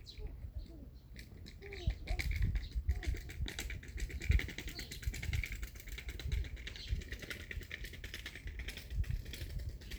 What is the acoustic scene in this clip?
park